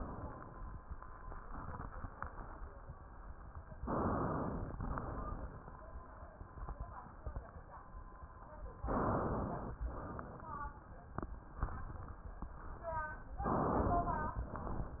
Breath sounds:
3.82-4.73 s: inhalation
4.75-5.81 s: exhalation
8.82-9.76 s: inhalation
9.83-10.95 s: exhalation
13.45-14.39 s: inhalation

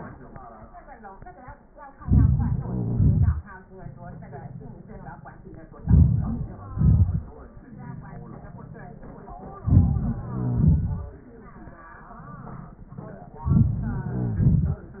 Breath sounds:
2.03-2.60 s: inhalation
2.58-3.42 s: exhalation
2.64-3.37 s: crackles
5.87-6.53 s: inhalation
6.54-7.21 s: crackles
6.54-7.57 s: exhalation
9.64-10.28 s: inhalation
10.29-11.27 s: exhalation
10.30-10.90 s: crackles
13.46-14.03 s: inhalation
13.79-14.43 s: crackles
14.13-14.79 s: exhalation

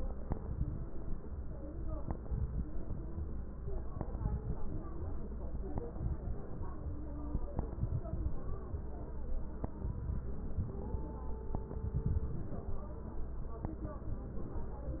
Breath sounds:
0.27-0.83 s: inhalation
0.27-0.83 s: crackles
2.03-2.60 s: inhalation
2.03-2.60 s: crackles
4.01-4.58 s: inhalation
4.01-4.58 s: crackles
5.95-6.51 s: inhalation
5.95-6.51 s: crackles
7.77-8.34 s: inhalation
7.77-8.34 s: crackles
9.84-10.60 s: inhalation
9.84-10.60 s: crackles
11.97-12.73 s: inhalation
11.97-12.73 s: crackles

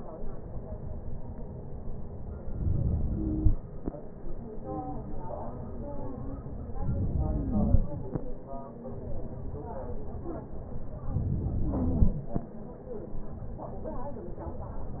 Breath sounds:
2.52-3.38 s: inhalation
6.86-7.72 s: inhalation
11.12-11.98 s: inhalation

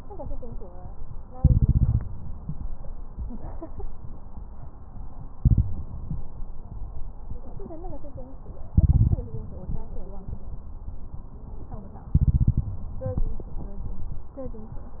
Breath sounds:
1.39-2.34 s: inhalation
5.33-5.89 s: inhalation
8.69-9.26 s: inhalation
12.15-13.01 s: inhalation

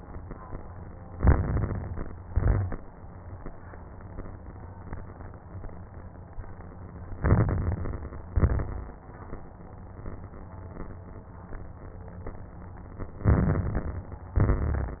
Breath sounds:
1.08-2.18 s: inhalation
1.08-2.18 s: crackles
2.22-2.86 s: exhalation
2.22-2.86 s: crackles
7.18-8.28 s: inhalation
7.18-8.28 s: crackles
8.36-8.99 s: exhalation
8.36-8.99 s: crackles
13.22-14.33 s: inhalation
13.22-14.33 s: crackles
14.37-15.00 s: exhalation
14.37-15.00 s: crackles

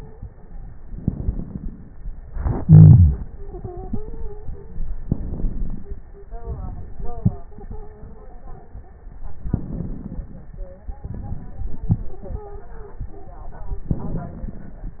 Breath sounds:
0.00-0.19 s: stridor
0.78-2.16 s: inhalation
0.78-2.16 s: crackles
2.20-4.95 s: exhalation
3.22-4.87 s: stridor
4.94-6.31 s: inhalation
4.94-6.31 s: crackles
6.35-9.14 s: exhalation
7.51-8.88 s: stridor
9.14-10.86 s: inhalation
9.14-10.86 s: crackles
10.85-13.88 s: exhalation
12.12-13.29 s: stridor
13.89-15.00 s: inhalation
13.89-15.00 s: crackles

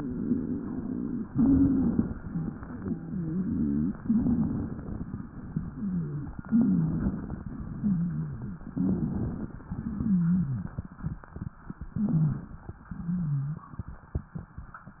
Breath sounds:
0.02-1.22 s: exhalation
1.29-2.17 s: inhalation
1.31-2.03 s: wheeze
2.20-3.95 s: exhalation
2.79-3.95 s: wheeze
3.98-5.05 s: inhalation
4.00-4.67 s: wheeze
5.16-6.36 s: exhalation
5.73-6.40 s: wheeze
6.45-7.12 s: wheeze
6.45-7.51 s: inhalation
7.53-8.63 s: exhalation
7.78-8.58 s: wheeze
8.63-9.70 s: inhalation
8.80-9.39 s: wheeze
9.70-10.95 s: exhalation
9.92-10.72 s: wheeze
11.90-12.77 s: inhalation
11.95-12.54 s: wheeze
12.90-14.16 s: exhalation
12.98-13.72 s: wheeze

